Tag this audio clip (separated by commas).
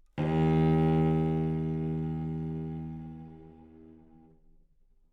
Music, Musical instrument, Bowed string instrument